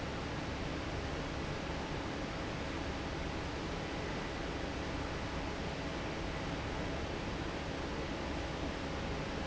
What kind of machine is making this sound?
fan